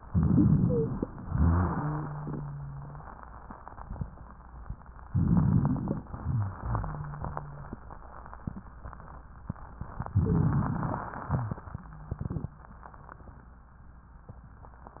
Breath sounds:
0.00-1.10 s: inhalation
0.53-0.93 s: wheeze
1.27-3.08 s: wheeze
5.10-6.04 s: inhalation
6.17-7.97 s: wheeze
10.07-11.25 s: inhalation
10.19-10.57 s: wheeze
11.08-12.14 s: wheeze

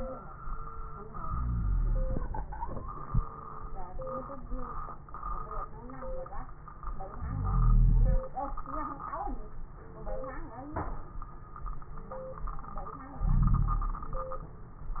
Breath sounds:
1.17-2.41 s: inhalation
1.17-2.41 s: wheeze
2.42-3.35 s: exhalation
7.20-8.23 s: inhalation
7.20-8.23 s: wheeze
13.23-14.03 s: inhalation
13.23-14.03 s: wheeze

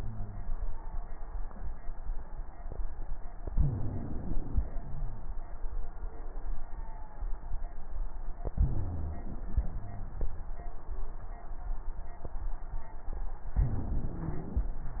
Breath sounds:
3.51-4.62 s: inhalation
3.51-4.62 s: wheeze
8.44-9.54 s: inhalation
8.44-9.54 s: wheeze
9.54-10.30 s: exhalation
9.56-10.30 s: wheeze
13.57-14.80 s: inhalation
13.57-14.80 s: wheeze

